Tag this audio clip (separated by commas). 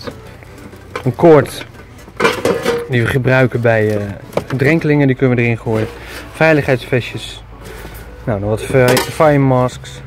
Music, Speech